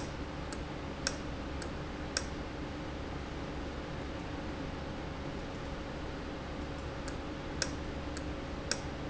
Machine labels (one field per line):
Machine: valve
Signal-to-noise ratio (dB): -6 dB